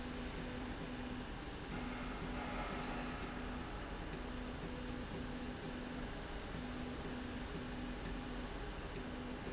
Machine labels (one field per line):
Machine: slide rail